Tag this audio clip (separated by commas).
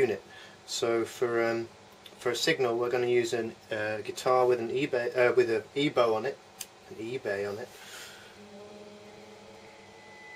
Speech